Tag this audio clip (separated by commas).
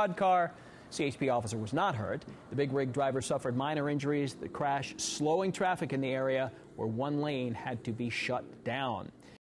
Speech